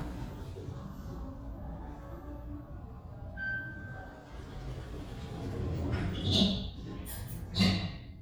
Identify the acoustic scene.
elevator